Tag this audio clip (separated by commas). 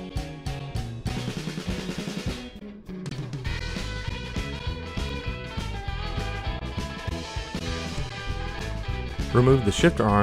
Drum